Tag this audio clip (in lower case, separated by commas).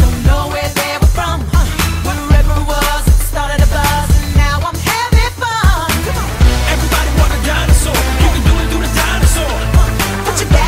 music